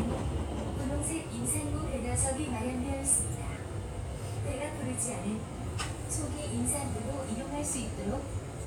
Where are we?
on a subway train